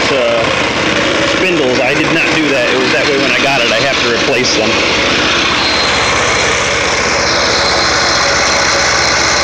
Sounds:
speech, engine, idling, vehicle

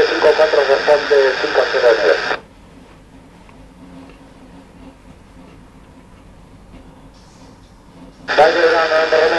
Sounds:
speech, radio

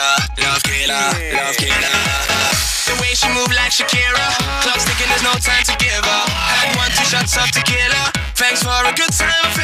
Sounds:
music

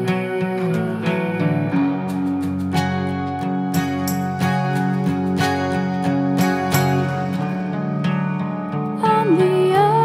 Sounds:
music

